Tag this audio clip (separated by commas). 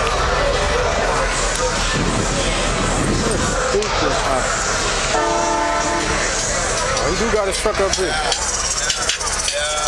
Car, Vehicle, outside, urban or man-made, Speech